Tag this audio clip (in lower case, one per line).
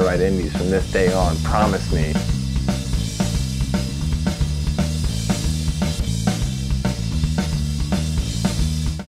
music
speech